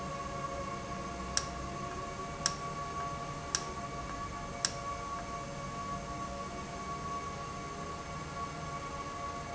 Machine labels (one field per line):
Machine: valve